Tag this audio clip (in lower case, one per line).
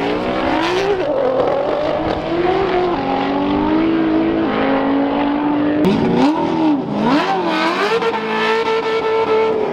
auto racing
car
vehicle